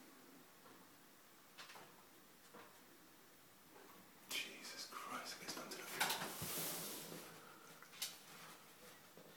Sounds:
speech

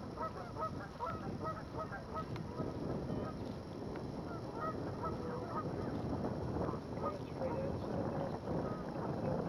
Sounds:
speech
sailing ship

